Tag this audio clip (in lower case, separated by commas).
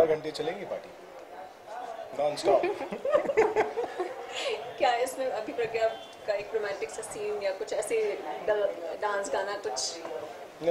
snicker, speech